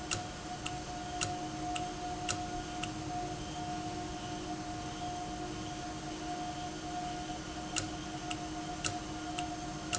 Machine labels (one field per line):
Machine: valve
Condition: normal